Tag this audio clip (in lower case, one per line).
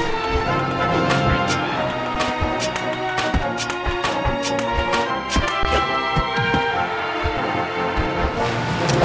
music